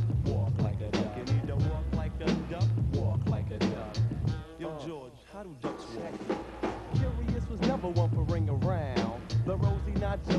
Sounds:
music

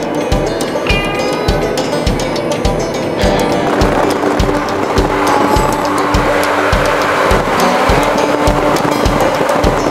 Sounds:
music
outside, rural or natural
tire squeal

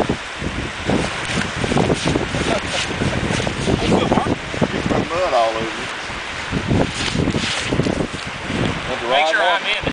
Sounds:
speech

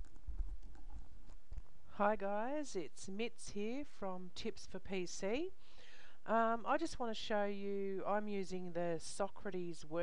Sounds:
inside a small room
speech

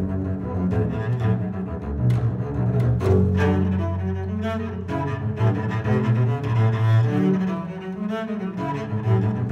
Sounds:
playing double bass

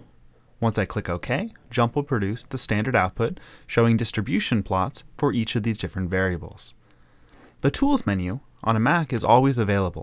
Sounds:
speech

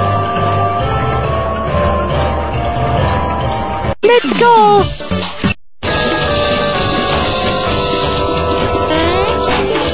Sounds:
music
speech

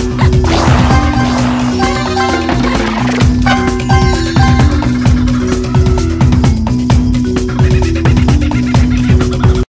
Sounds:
music

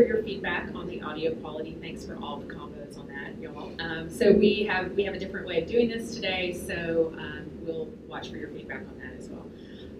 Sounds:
speech

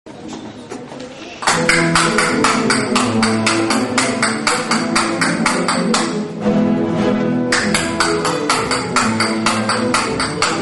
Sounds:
flamenco
classical music
orchestra
musical instrument
music
guitar

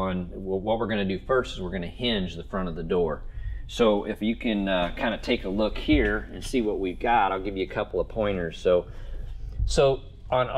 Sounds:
speech

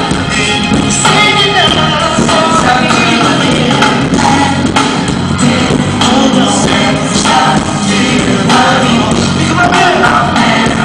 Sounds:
singing
vocal music

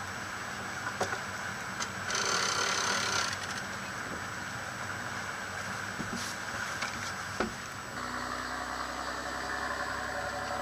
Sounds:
motorboat
vehicle
water vehicle

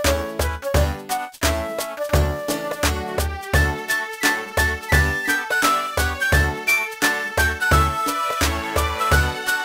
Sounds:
music

